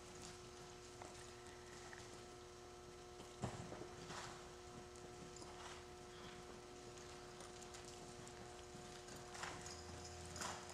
Faint clip clops of a horse and with rustling